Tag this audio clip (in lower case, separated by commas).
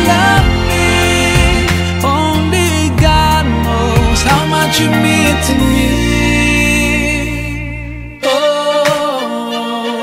music, singing, christian music